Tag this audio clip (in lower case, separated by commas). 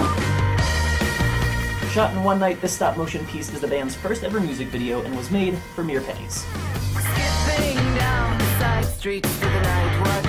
speech, music